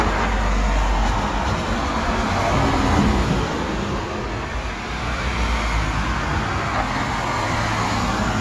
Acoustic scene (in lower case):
street